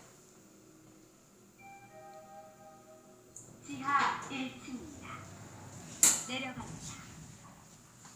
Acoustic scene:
elevator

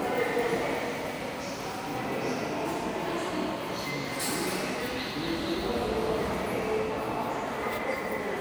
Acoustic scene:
subway station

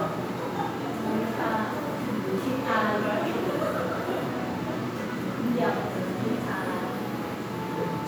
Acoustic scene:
crowded indoor space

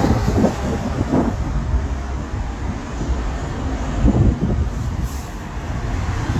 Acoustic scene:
street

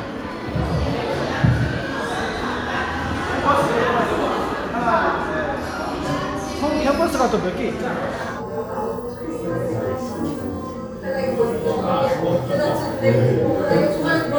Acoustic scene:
crowded indoor space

